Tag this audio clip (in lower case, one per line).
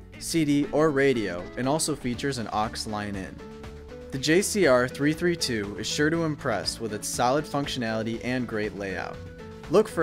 speech
music